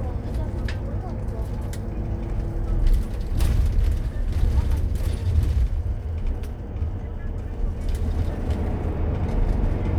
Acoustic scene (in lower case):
bus